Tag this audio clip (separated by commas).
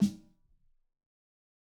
Music, Snare drum, Musical instrument, Drum, Percussion